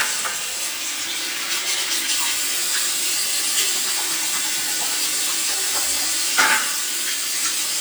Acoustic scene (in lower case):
restroom